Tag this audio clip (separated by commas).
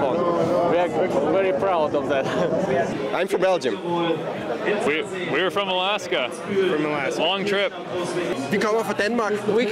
outside, urban or man-made, Speech